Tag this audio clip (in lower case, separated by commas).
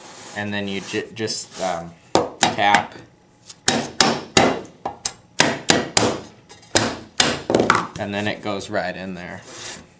speech, inside a small room